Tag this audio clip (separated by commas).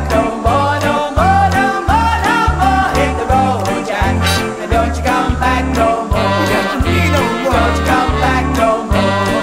Singing, Music